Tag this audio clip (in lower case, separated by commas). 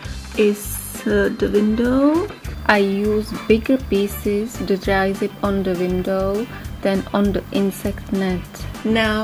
music, speech